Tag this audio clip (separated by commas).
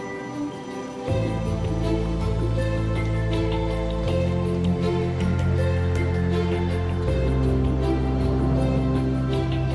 Music